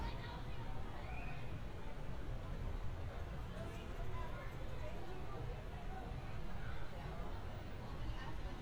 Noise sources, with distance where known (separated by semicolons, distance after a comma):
unidentified human voice, far